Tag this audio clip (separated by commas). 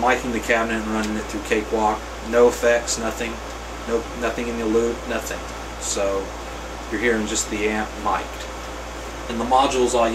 Speech